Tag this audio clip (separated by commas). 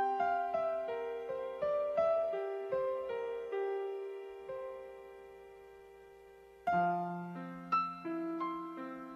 Music, Soundtrack music